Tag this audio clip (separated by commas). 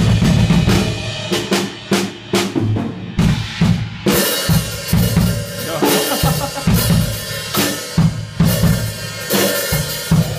playing bass drum